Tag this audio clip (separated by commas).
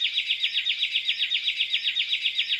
Laughter, Human voice